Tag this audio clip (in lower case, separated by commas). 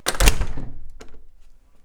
door, home sounds